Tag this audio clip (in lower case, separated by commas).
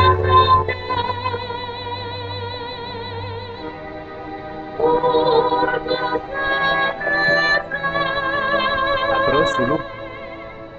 speech, music